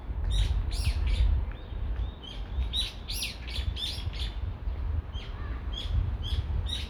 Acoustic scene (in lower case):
residential area